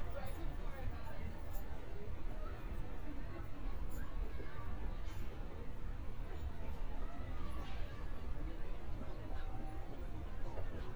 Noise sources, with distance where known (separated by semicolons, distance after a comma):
person or small group talking, far